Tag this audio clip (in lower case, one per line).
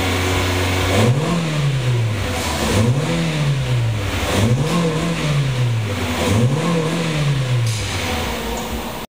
car
vehicle
revving